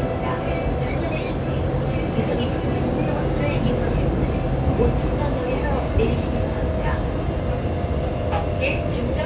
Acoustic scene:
subway train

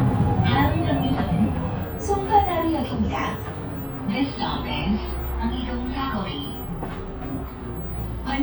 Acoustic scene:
bus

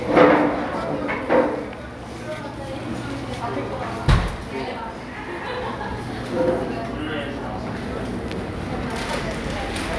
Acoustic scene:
cafe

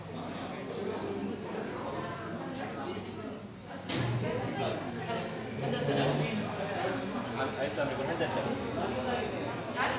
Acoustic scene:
cafe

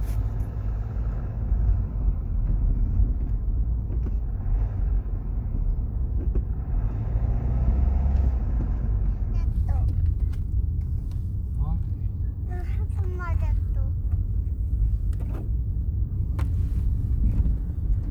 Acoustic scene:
car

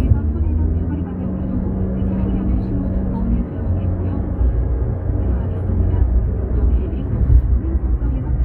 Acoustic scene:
car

